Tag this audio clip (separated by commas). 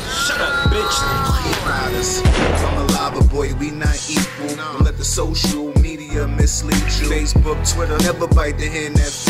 Music, Speech